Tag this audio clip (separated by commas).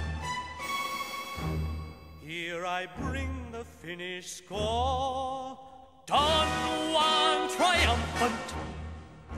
Harpsichord, Singing